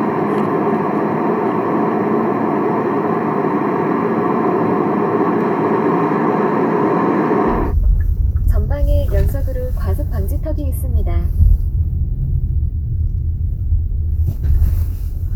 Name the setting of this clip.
car